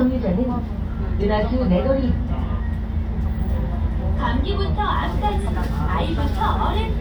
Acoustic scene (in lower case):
bus